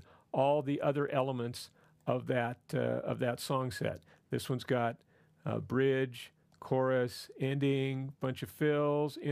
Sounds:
speech

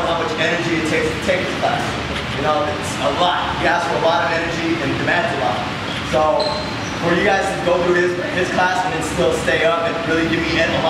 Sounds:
speech

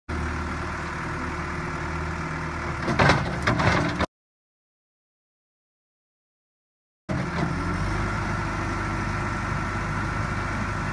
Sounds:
vehicle
heavy engine (low frequency)

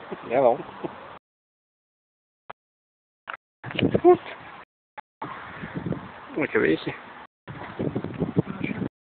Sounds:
speech

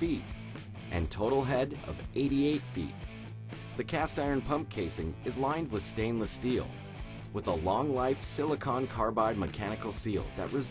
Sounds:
speech
music

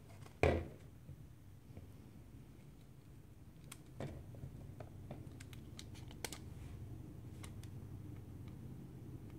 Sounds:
inside a small room

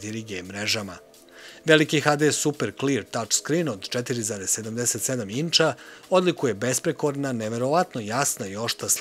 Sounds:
speech

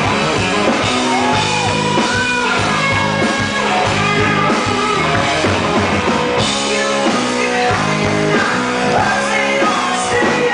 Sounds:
music

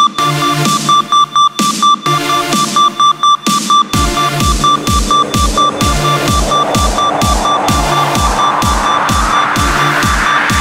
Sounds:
burst
music

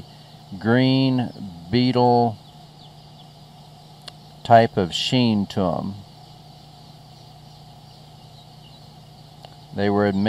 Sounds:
speech
animal

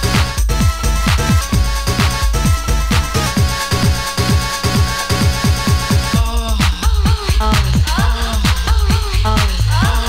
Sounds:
house music
electronic music
disco
techno
music

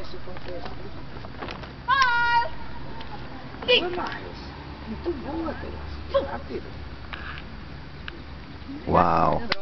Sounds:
speech

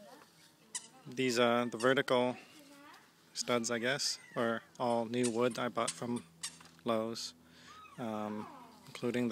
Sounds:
speech

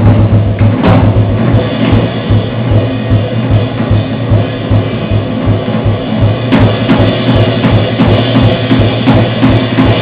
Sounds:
jazz
music

